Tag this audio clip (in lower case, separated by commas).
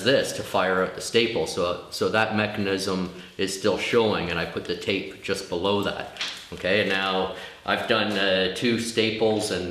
speech